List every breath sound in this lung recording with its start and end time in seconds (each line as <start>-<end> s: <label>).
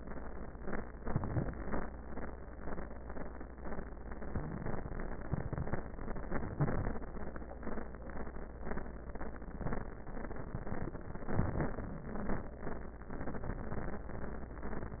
0.99-1.61 s: inhalation
4.24-4.85 s: wheeze
6.40-7.01 s: inhalation
11.28-11.89 s: inhalation